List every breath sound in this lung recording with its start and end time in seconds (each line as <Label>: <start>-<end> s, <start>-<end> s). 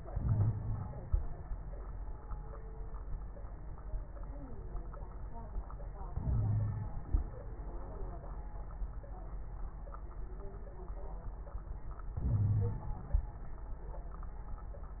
Inhalation: 0.12-1.25 s, 6.11-6.94 s, 12.16-13.20 s
Wheeze: 0.12-0.81 s, 6.20-6.94 s, 12.28-12.81 s